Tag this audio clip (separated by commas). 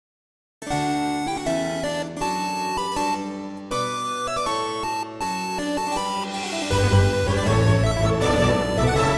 Harpsichord